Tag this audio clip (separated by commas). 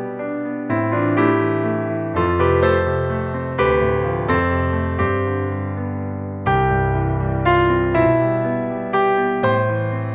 Music